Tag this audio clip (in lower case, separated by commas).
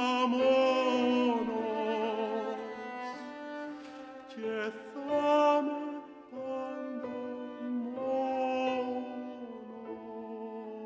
music, opera, bowed string instrument